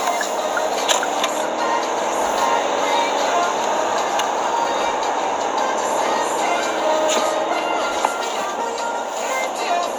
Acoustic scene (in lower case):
car